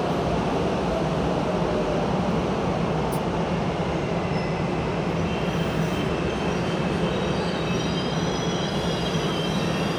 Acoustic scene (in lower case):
subway station